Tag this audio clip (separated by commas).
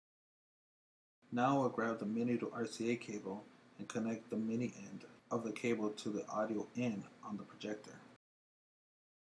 inside a small room, Speech